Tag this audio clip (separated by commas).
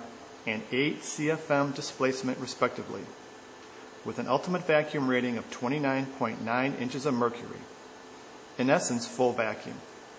Speech